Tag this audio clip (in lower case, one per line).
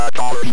human voice